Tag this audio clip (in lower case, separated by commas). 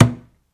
thud